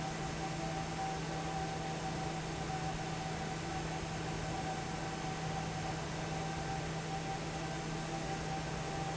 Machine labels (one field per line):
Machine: fan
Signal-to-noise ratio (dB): -6 dB